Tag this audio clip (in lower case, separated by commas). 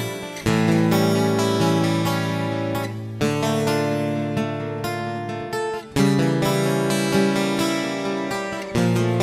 strum, bass guitar, guitar, electric guitar, plucked string instrument, musical instrument, music